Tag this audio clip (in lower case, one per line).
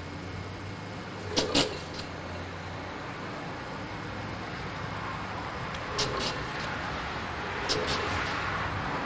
medium engine (mid frequency)
engine starting
engine